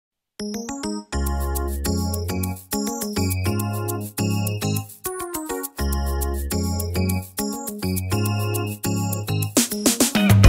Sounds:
Music

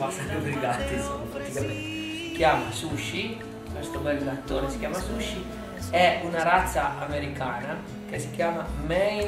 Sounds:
Speech, Music

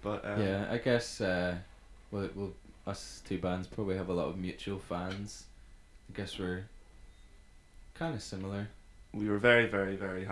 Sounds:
Speech

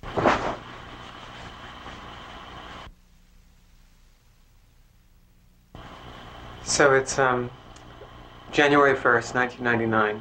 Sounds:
Speech

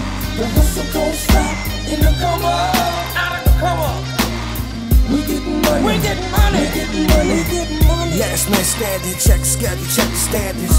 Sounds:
Music, Independent music, Pop music

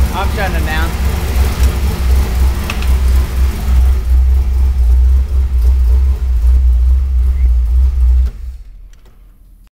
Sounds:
Vehicle, vroom, Accelerating, Heavy engine (low frequency), Speech

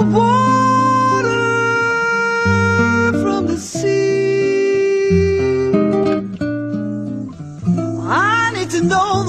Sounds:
Music, Acoustic guitar

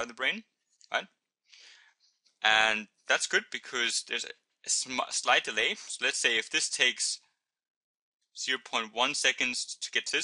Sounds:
Speech

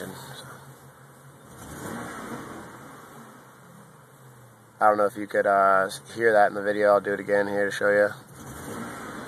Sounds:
Car, Accelerating, Vehicle, Speech

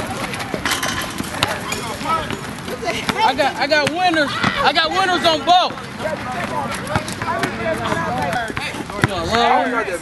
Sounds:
Speech

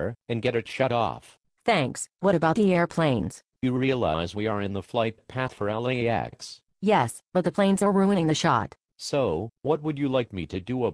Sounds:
Speech

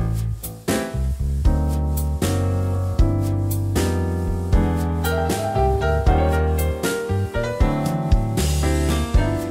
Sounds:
Music

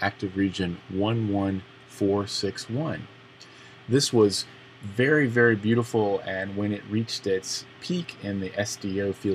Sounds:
Speech

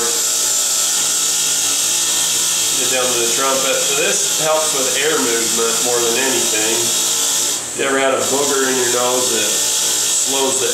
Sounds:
inside a small room, Speech, Engine

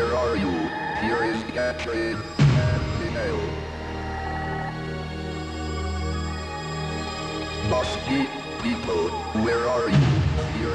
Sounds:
Speech, Music, pop

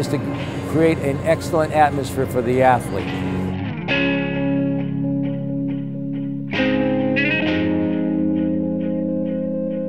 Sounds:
Speech, Music, outside, urban or man-made

